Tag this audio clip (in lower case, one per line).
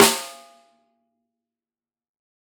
percussion
music
snare drum
drum
musical instrument